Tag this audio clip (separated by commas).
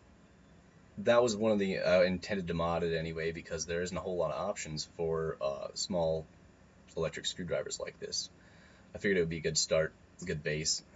Speech